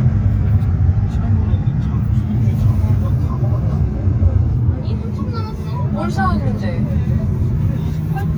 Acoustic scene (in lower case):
car